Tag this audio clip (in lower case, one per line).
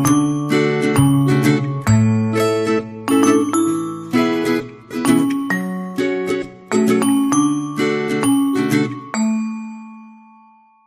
glockenspiel
mallet percussion
xylophone